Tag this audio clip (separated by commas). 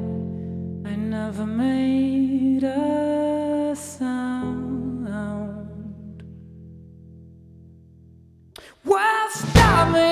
Music, Funk